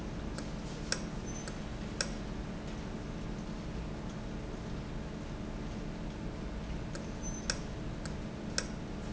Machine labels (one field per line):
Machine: valve